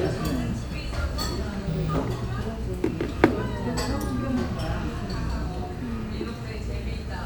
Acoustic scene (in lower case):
restaurant